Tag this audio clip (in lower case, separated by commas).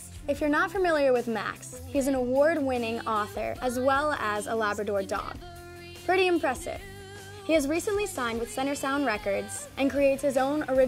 speech, music